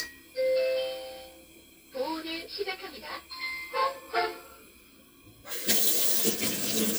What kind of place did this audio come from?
kitchen